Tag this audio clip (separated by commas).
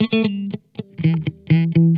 Electric guitar, Music, Guitar, Plucked string instrument, Musical instrument